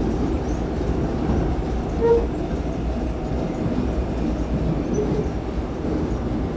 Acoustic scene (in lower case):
subway train